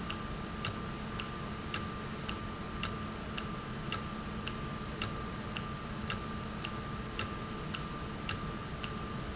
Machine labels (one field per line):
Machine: valve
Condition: normal